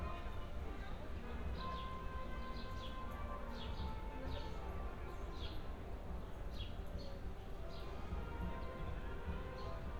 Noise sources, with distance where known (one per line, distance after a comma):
music from an unclear source, far